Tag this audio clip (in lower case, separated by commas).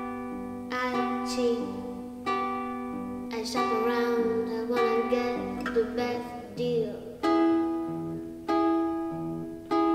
music